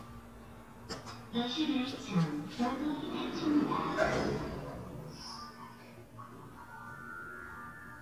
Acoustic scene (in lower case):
elevator